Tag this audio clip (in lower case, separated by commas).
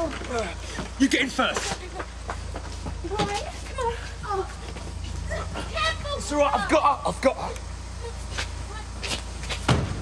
speech